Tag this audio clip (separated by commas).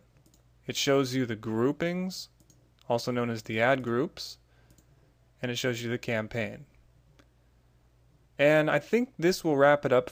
Speech, Clicking